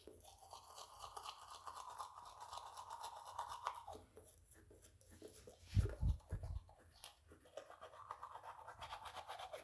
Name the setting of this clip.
restroom